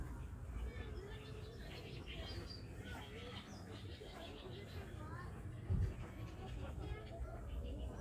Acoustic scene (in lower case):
park